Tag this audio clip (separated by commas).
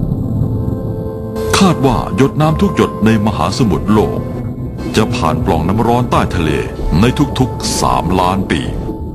Music, Speech